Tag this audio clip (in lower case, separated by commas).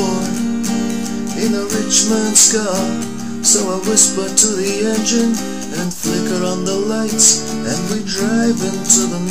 music